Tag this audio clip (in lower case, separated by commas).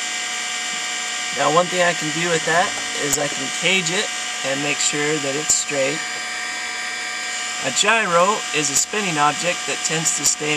speech